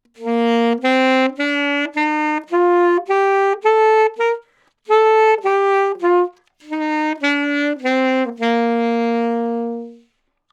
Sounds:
music, musical instrument, woodwind instrument

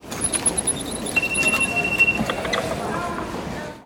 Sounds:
metro, rail transport, vehicle

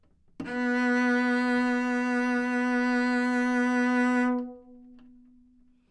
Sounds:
musical instrument, bowed string instrument, music

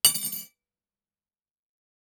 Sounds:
home sounds, silverware

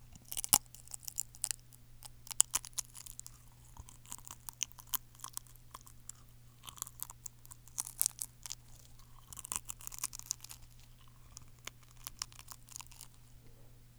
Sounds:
chewing

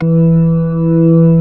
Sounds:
musical instrument, keyboard (musical), organ, music

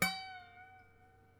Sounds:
musical instrument, music, harp

